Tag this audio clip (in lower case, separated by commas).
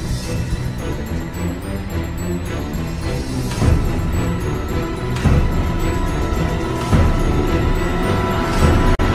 music